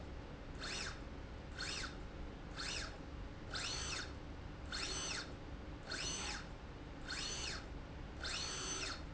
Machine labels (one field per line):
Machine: slide rail